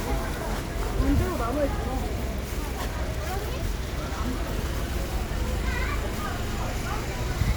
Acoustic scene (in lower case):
residential area